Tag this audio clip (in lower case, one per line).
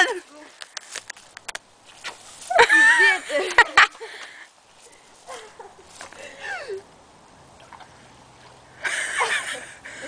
outside, rural or natural
speech